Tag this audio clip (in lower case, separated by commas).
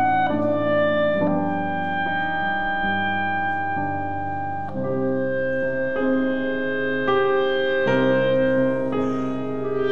wind instrument, music, musical instrument, clarinet, playing clarinet